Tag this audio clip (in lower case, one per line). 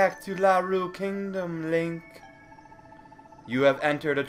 music
speech